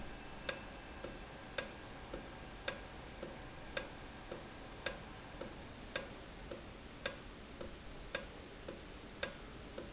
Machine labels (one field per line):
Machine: valve